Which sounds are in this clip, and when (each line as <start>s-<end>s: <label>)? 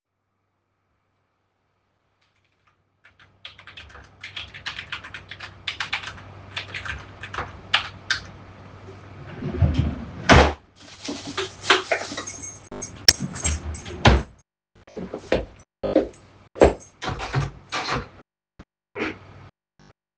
2.2s-8.5s: keyboard typing
10.3s-10.6s: door
12.3s-14.3s: keys
14.0s-14.3s: door
17.0s-18.2s: wardrobe or drawer